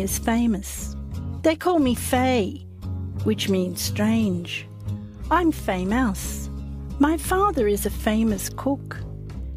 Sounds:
speech
music

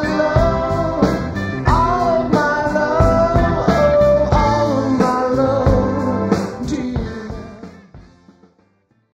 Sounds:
music

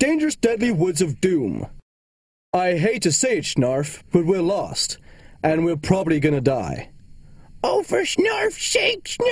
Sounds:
speech

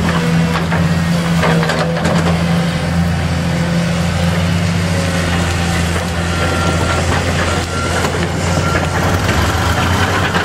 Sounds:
fire crackling

